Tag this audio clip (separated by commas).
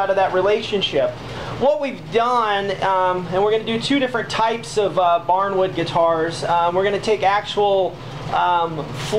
Speech